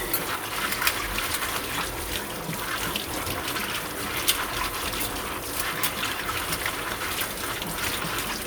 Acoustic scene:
kitchen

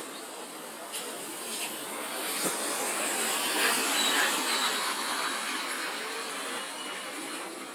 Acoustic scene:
residential area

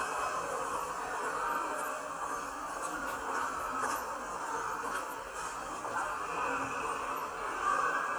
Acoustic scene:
subway station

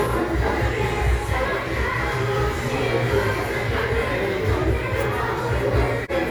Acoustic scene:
crowded indoor space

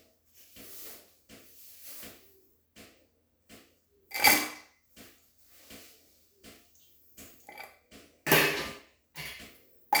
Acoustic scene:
restroom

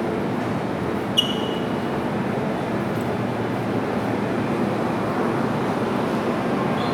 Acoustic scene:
subway station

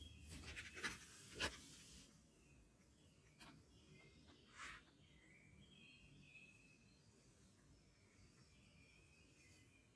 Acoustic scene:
park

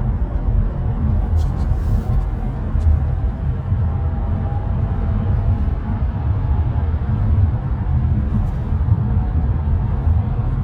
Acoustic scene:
car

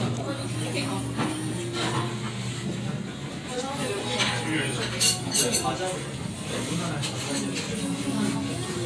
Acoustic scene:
crowded indoor space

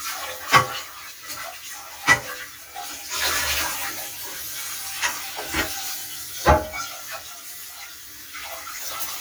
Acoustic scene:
kitchen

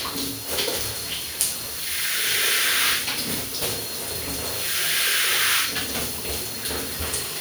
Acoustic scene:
restroom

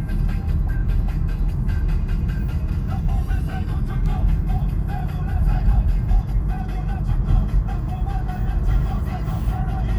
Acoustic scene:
car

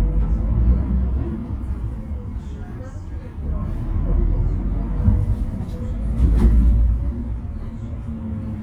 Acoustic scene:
bus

